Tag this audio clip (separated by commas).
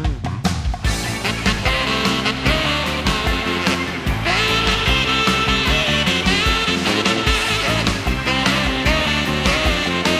Dance music, Music